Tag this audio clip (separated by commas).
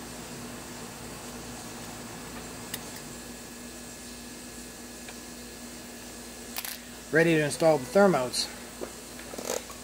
Speech